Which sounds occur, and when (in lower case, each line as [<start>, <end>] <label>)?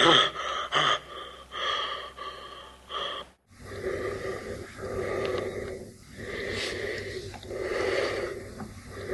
[0.00, 9.13] background noise
[8.53, 8.71] tick